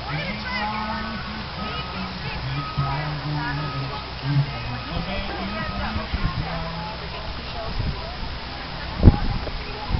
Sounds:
Music, Speech

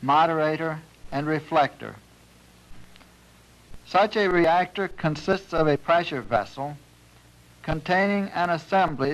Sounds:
Speech

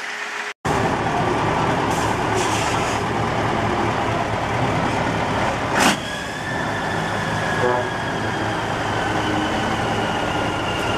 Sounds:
Truck, Vehicle

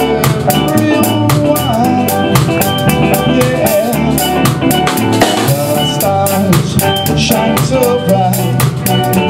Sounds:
Drum, Musical instrument, Drum kit, Music, Bass drum

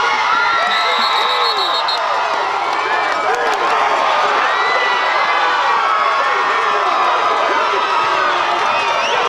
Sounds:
Speech

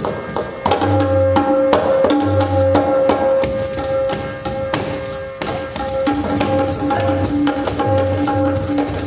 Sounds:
Music

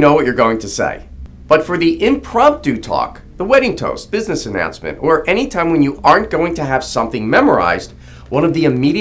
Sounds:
man speaking, Speech

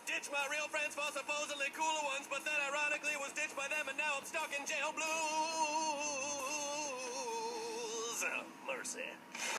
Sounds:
Speech

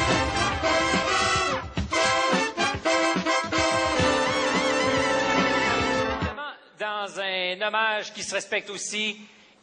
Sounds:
Speech, Music

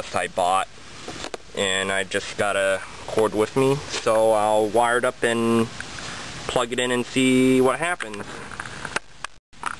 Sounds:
Speech

